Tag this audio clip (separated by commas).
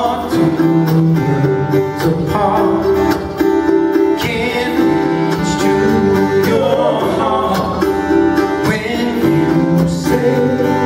Music